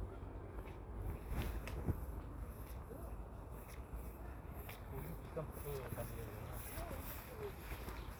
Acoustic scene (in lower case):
residential area